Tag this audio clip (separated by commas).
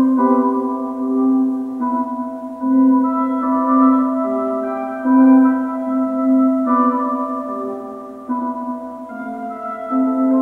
Music